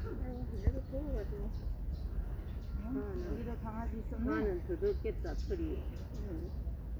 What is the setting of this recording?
park